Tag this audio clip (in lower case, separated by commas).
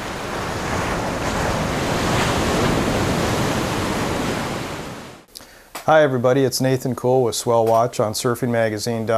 surf, ocean